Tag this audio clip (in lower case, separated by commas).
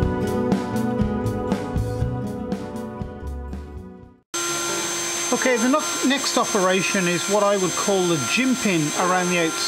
music, speech